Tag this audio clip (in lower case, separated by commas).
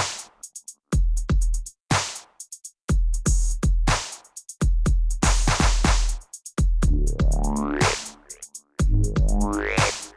music, dubstep